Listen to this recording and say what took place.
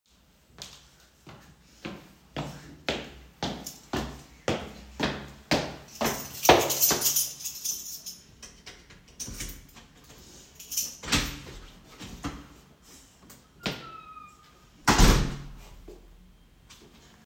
The recorder moves toward the front door while footsteps are audible. A keychain is handled near the lock, and the door is opened and then closed after entry. The sequence sounds like arriving home.